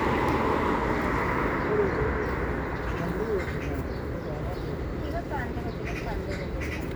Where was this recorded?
in a residential area